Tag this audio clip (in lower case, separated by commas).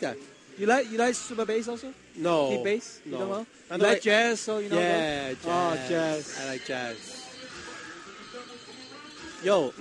speech